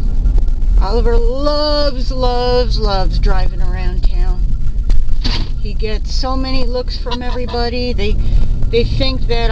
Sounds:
Speech, Honk

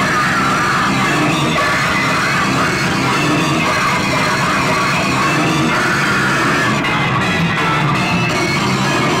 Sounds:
Cacophony, Music

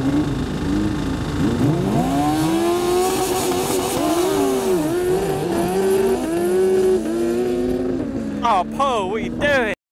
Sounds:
Speech

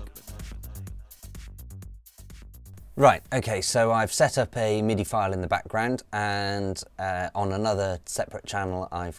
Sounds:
Music, Speech

